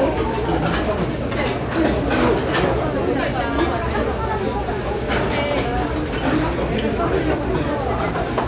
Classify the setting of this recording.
restaurant